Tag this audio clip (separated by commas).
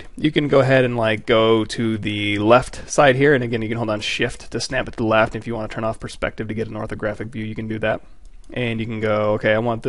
Speech